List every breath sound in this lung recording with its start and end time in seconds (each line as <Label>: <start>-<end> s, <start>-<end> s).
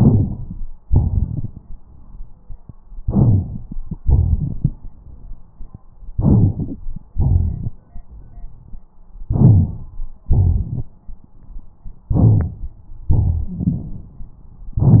Inhalation: 3.06-3.80 s, 6.13-6.78 s, 9.30-9.96 s, 12.14-12.75 s
Exhalation: 0.85-2.54 s, 4.00-4.75 s, 7.15-7.76 s, 10.28-10.91 s, 13.11-14.27 s
Wheeze: 13.46-13.84 s
Crackles: 3.06-3.80 s, 4.00-4.75 s, 6.13-6.78 s, 7.15-7.76 s, 10.28-10.91 s, 13.11-14.27 s